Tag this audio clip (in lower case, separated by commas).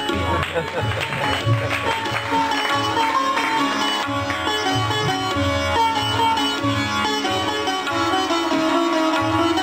sitar, music